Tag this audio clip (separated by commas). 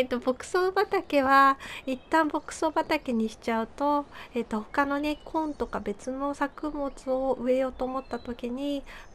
Speech